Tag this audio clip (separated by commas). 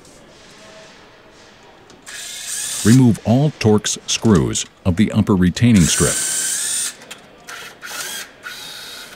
Tools, Power tool